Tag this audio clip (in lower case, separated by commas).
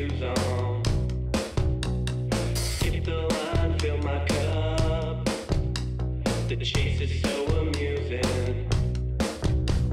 pop music, folk music, middle eastern music, music, funk